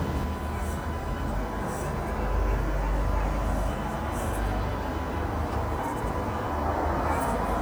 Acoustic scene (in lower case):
street